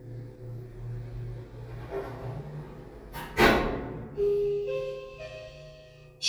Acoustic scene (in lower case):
elevator